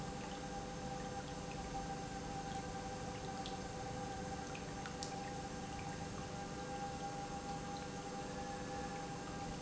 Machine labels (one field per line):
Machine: pump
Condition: normal